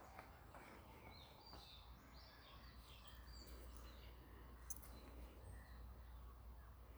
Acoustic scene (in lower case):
park